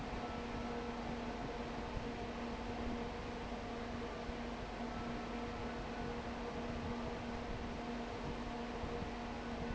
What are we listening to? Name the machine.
fan